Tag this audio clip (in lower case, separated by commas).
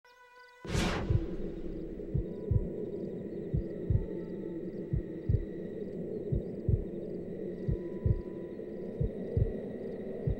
sound effect